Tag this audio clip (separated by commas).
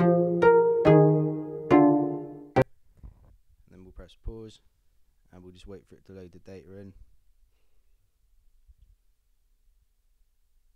Music, Speech